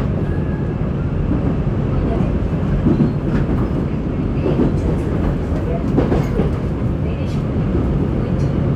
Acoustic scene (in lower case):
subway train